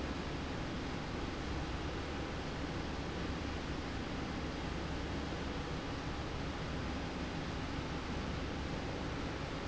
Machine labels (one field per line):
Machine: slide rail